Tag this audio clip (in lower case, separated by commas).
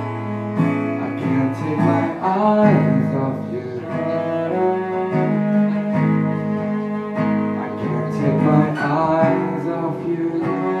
cello, plucked string instrument, guitar, bowed string instrument, playing cello, musical instrument, music